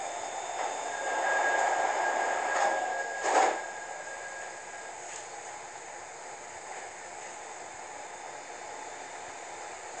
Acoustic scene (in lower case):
subway train